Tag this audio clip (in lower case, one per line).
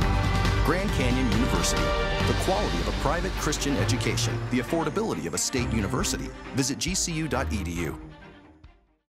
music
speech